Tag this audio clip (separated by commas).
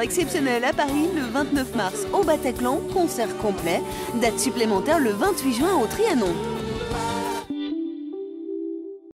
Music, Speech